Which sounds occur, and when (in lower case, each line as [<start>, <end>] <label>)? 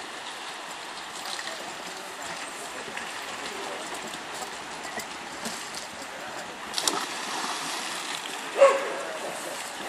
[0.00, 9.85] stream
[4.83, 5.06] whistling
[6.71, 8.30] splash
[6.75, 6.95] tap
[8.53, 9.13] bark
[9.03, 9.85] speech
[9.14, 9.85] man speaking